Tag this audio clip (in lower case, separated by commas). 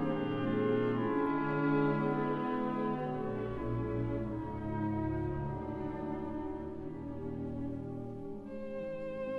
music, musical instrument